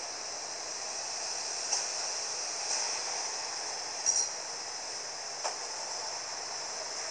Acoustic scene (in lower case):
street